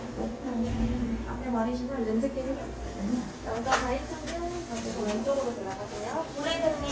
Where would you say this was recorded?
in a crowded indoor space